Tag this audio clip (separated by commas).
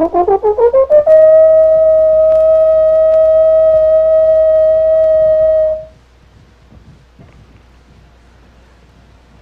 Brass instrument, Trombone